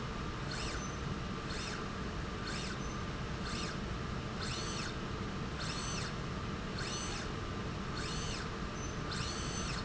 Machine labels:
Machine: slide rail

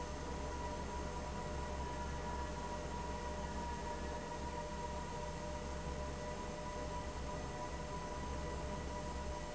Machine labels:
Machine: fan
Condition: abnormal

